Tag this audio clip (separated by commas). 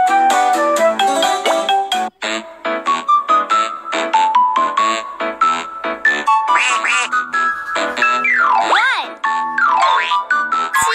Speech, Music, Music for children